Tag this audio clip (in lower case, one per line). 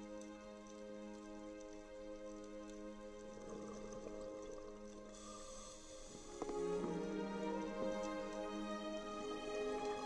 music